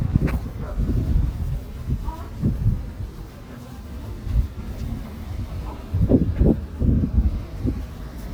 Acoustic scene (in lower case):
residential area